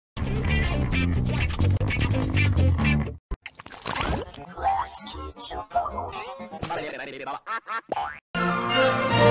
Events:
0.2s-3.1s: music
3.3s-3.4s: generic impact sounds
3.5s-4.4s: sound effect
4.3s-6.6s: music
4.6s-5.2s: speech synthesizer
5.4s-6.1s: speech synthesizer
6.1s-6.4s: sound effect
6.6s-6.8s: sound effect
6.6s-7.3s: human voice
7.5s-7.9s: quack
7.9s-8.2s: boing
8.4s-9.3s: music

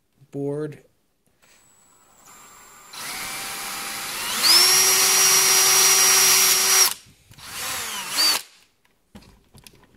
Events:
0.0s-9.9s: background noise
0.1s-0.3s: generic impact sounds
0.3s-0.7s: man speaking
2.2s-6.9s: drill
7.0s-7.3s: generic impact sounds
7.3s-8.4s: drill
8.8s-8.9s: generic impact sounds
9.1s-9.4s: generic impact sounds
9.5s-9.9s: generic impact sounds

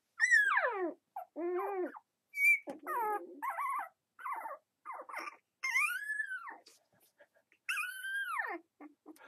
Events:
0.0s-9.2s: mechanisms
0.2s-1.0s: dog
1.1s-2.0s: dog
2.3s-3.9s: dog
2.6s-2.8s: generic impact sounds
4.1s-4.6s: dog
4.8s-5.4s: dog
5.6s-6.8s: dog
6.7s-7.4s: pant (dog)
7.5s-8.7s: dog
8.8s-9.2s: dog
9.1s-9.2s: generic impact sounds

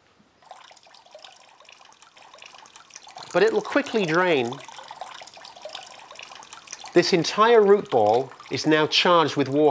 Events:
0.0s-9.7s: wind
0.4s-9.7s: liquid
3.3s-4.6s: male speech
6.9s-8.3s: male speech
8.5s-9.7s: male speech

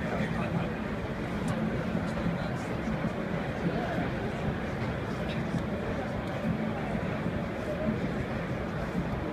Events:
0.0s-0.7s: man speaking
0.0s-9.3s: printer
1.4s-1.5s: tick
2.0s-2.1s: tick
2.3s-2.6s: man speaking
3.7s-4.2s: man speaking
5.3s-5.3s: tick
5.5s-5.6s: tick
5.9s-7.3s: speech
6.2s-6.3s: tick
7.6s-7.9s: speech
9.1s-9.1s: tick

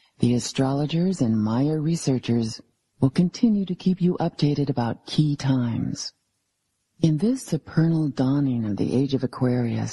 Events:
0.0s-9.9s: background noise
0.1s-2.6s: female speech
2.9s-6.1s: female speech
7.0s-9.9s: female speech

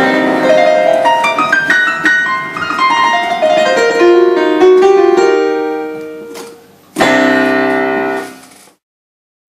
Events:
0.0s-8.8s: background noise
0.0s-8.8s: music
6.0s-6.1s: tick
6.4s-6.4s: tick
8.2s-8.8s: generic impact sounds
8.3s-8.4s: tick

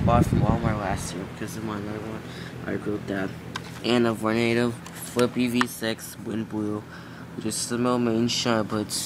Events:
0.0s-2.2s: male speech
0.0s-9.0s: mechanical fan
2.2s-2.6s: breathing
2.6s-3.3s: male speech
3.5s-3.5s: tick
3.5s-3.8s: generic impact sounds
3.8s-4.7s: male speech
4.8s-4.9s: tick
4.9s-5.3s: generic impact sounds
5.1s-6.8s: male speech
5.2s-5.2s: tick
5.6s-5.6s: tick
6.9s-7.3s: breathing
7.4s-9.0s: male speech

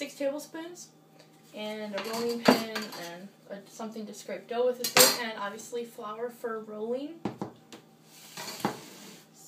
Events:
0.0s-0.9s: female speech
0.0s-9.4s: mechanisms
1.1s-1.3s: finger snapping
1.5s-3.3s: female speech
1.9s-2.3s: cutlery
2.4s-2.6s: generic impact sounds
2.8s-2.9s: cutlery
2.9s-3.2s: surface contact
3.5s-7.3s: female speech
4.8s-5.2s: cutlery
7.2s-7.5s: tap
7.5s-7.6s: generic impact sounds
7.7s-7.8s: generic impact sounds
8.1s-9.3s: surface contact
8.3s-8.8s: generic impact sounds

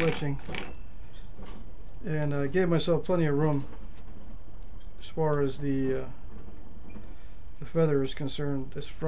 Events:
0.0s-0.7s: male speech
0.0s-9.0s: mechanisms
0.4s-0.7s: generic impact sounds
1.0s-1.7s: breathing
1.1s-1.6s: generic impact sounds
2.0s-3.7s: male speech
2.1s-2.3s: generic impact sounds
3.9s-4.1s: generic impact sounds
4.5s-4.7s: generic impact sounds
5.0s-6.1s: male speech
5.3s-5.4s: generic impact sounds
6.2s-6.4s: generic impact sounds
6.8s-7.1s: generic impact sounds
6.8s-7.6s: breathing
7.5s-9.0s: male speech

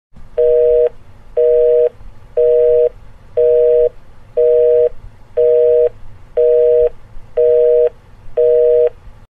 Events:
0.1s-9.2s: mechanisms
0.3s-0.9s: busy signal
0.9s-0.9s: tick
1.3s-1.9s: busy signal
1.8s-1.9s: tick
2.3s-2.9s: busy signal
3.3s-3.9s: busy signal
4.4s-4.9s: busy signal
5.4s-5.9s: busy signal
5.8s-5.9s: tick
6.4s-6.9s: busy signal
6.8s-6.9s: tick
7.3s-8.0s: busy signal
7.8s-7.9s: tick
8.4s-8.9s: busy signal
8.8s-8.9s: tick

